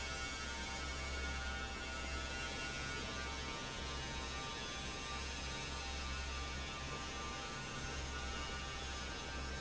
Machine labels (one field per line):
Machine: fan